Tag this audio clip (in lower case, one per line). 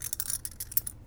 home sounds
keys jangling